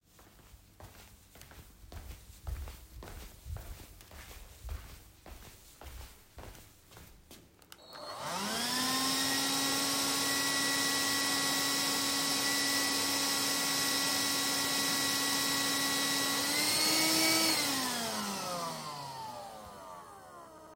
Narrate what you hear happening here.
I went to the living room and then started the vacuum cleaner.